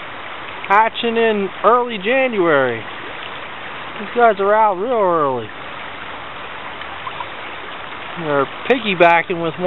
A stream of water splashing and trickling alongside a man speaking